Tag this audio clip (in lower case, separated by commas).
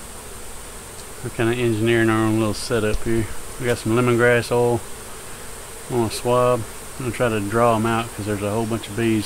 fly, insect, bee or wasp